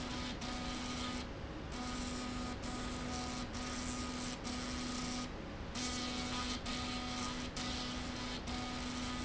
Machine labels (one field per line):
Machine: slide rail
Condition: abnormal